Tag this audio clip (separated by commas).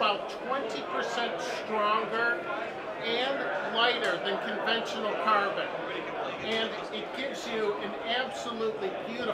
Speech